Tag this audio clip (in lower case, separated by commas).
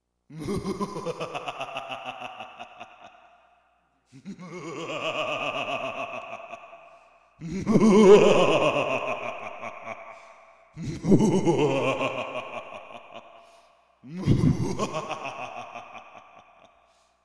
laughter, human voice